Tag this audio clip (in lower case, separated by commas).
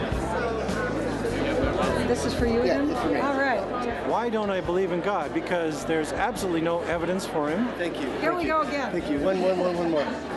music, chatter, speech